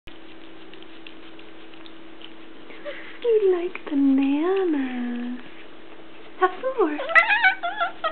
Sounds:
cat, pets, animal, speech

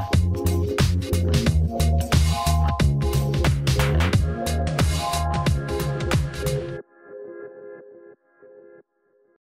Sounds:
music

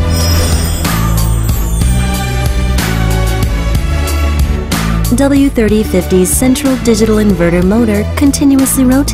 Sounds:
speech, music

